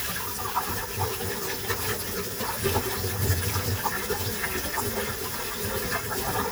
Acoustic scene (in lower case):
kitchen